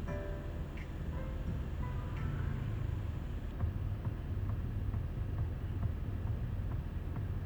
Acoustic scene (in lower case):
car